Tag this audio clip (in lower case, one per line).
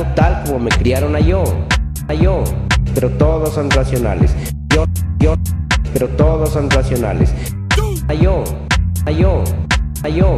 music